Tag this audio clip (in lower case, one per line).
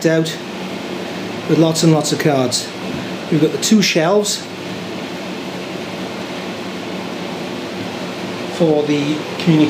speech
inside a large room or hall